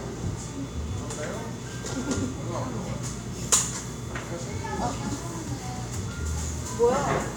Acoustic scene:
cafe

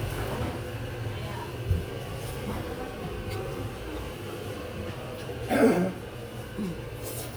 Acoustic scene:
restaurant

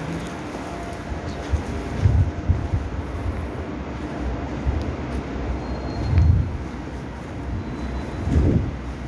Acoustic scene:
subway station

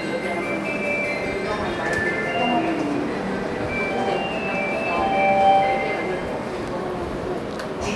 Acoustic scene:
subway station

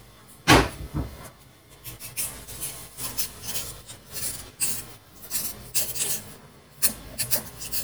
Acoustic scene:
kitchen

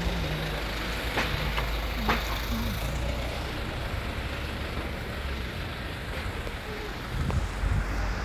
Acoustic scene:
residential area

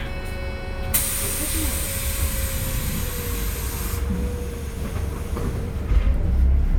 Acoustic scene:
bus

